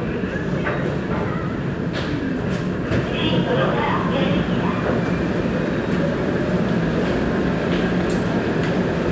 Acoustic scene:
subway station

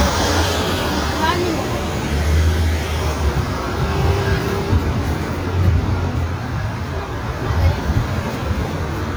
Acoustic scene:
street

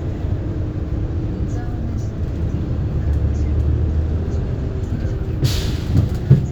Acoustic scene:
bus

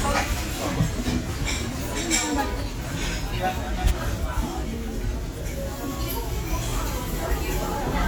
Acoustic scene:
restaurant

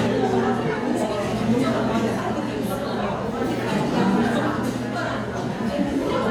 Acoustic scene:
crowded indoor space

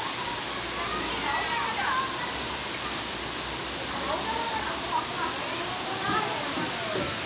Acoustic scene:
park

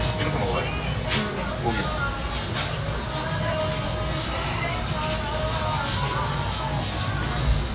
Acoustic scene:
restaurant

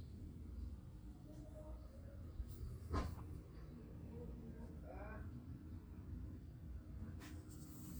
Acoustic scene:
residential area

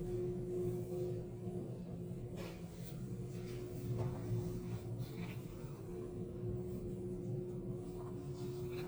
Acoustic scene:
elevator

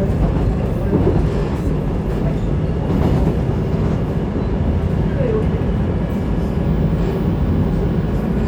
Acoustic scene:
subway train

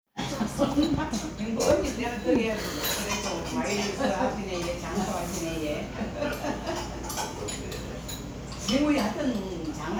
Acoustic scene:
crowded indoor space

